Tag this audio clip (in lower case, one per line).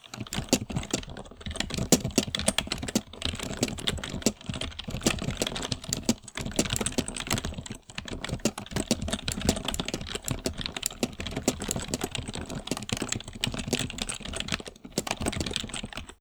musical instrument
keyboard (musical)
music
typing
domestic sounds
computer keyboard